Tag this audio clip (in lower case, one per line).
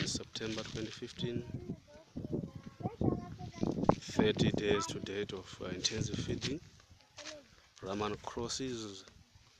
speech